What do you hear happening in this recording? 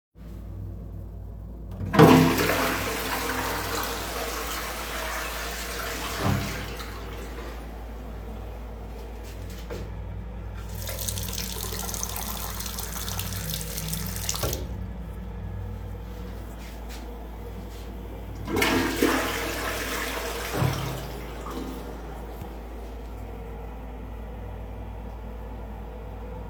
I flush the toilet. Then I use the sink. I flush the toilet again